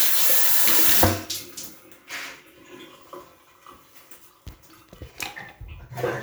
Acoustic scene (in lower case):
restroom